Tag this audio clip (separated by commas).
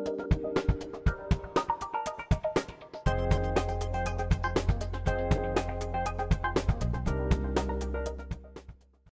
Music